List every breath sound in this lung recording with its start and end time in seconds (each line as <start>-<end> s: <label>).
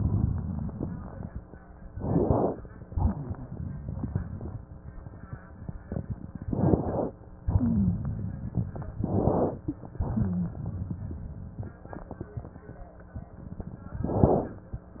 0.00-1.41 s: crackles
1.92-2.60 s: inhalation
1.92-2.60 s: inhalation
2.90-4.69 s: exhalation
2.90-4.69 s: exhalation
2.90-4.69 s: crackles
7.44-8.12 s: rhonchi
8.08-8.98 s: crackles
9.01-9.66 s: inhalation
10.09-10.59 s: rhonchi
10.09-11.77 s: exhalation
10.59-11.78 s: crackles
14.08-14.54 s: inhalation
14.08-14.54 s: crackles